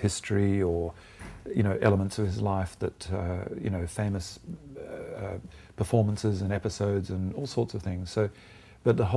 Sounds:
speech

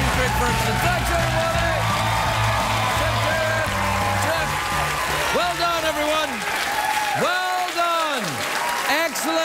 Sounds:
narration
speech
music

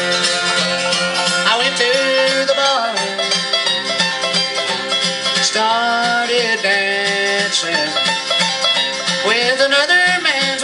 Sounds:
pizzicato

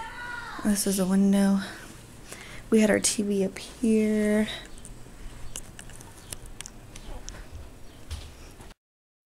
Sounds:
speech
inside a small room

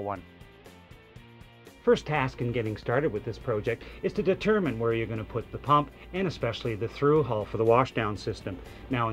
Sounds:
speech
music

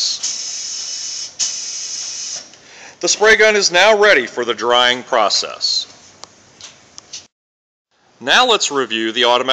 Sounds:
spray
speech

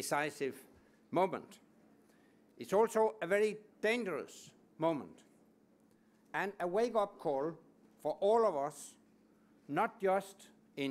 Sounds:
speech
male speech

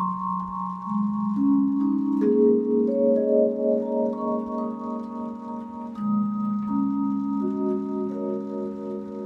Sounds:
playing vibraphone

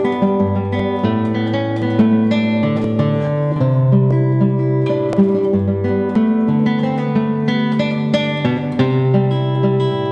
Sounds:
musical instrument
plucked string instrument
strum
music
guitar

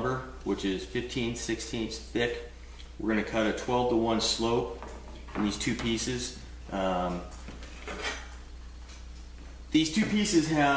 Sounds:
speech

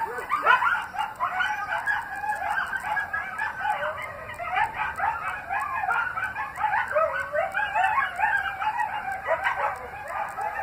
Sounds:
coyote howling

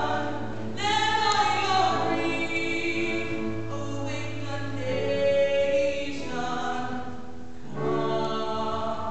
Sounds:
music

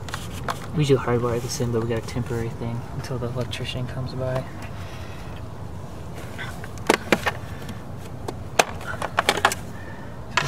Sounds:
speech

